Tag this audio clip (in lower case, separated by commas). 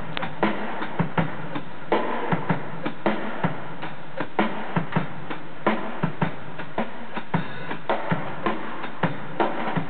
drum kit, musical instrument, drum, music